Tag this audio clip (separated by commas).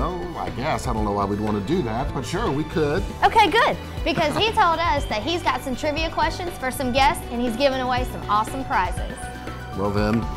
Music, Speech